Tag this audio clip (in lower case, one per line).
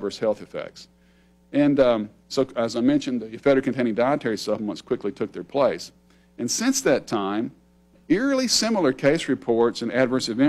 speech